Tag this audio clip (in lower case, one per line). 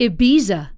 human voice
female speech
speech